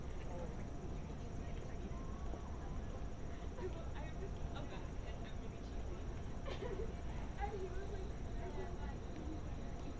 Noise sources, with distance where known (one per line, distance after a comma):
person or small group talking, near